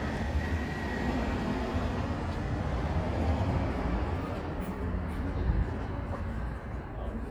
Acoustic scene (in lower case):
residential area